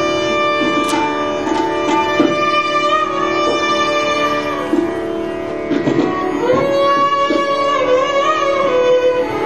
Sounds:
Music, Musical instrument, fiddle

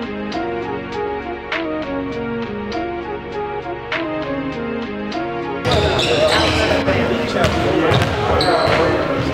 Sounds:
Speech, Music, Basketball bounce

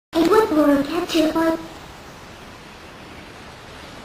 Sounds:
Speech

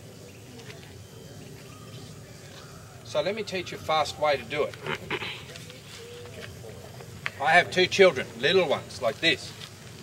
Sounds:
outside, urban or man-made, Speech

